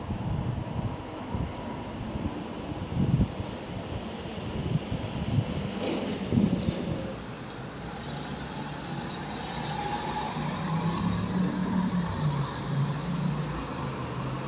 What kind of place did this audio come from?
street